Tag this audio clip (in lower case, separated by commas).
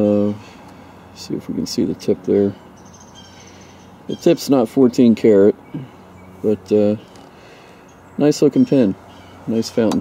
speech, outside, rural or natural